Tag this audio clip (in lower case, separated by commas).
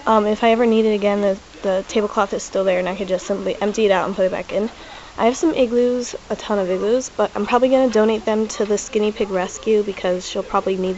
speech